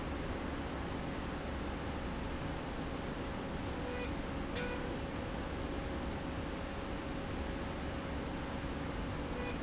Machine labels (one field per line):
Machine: slide rail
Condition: normal